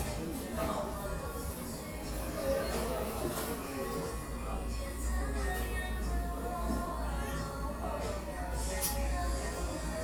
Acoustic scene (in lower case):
cafe